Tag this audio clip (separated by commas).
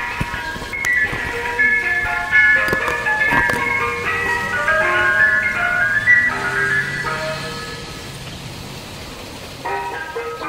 ice cream truck